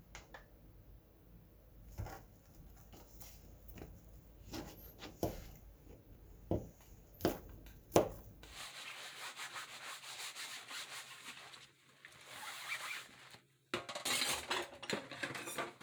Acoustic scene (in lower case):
kitchen